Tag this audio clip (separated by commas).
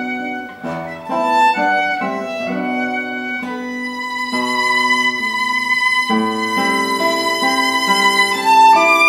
Music, Musical instrument, Guitar, Bowed string instrument, Violin